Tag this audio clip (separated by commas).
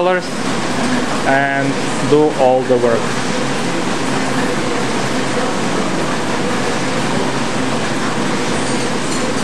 Speech